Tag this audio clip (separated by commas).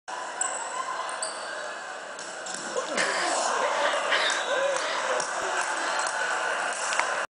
Speech